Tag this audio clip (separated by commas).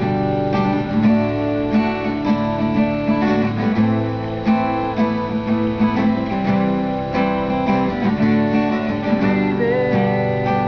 Strum, Musical instrument, Guitar, Plucked string instrument, Acoustic guitar, Music